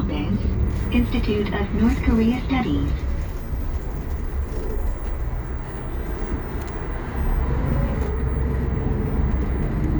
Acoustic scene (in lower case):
bus